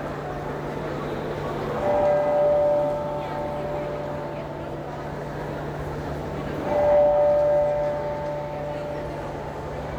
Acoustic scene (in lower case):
crowded indoor space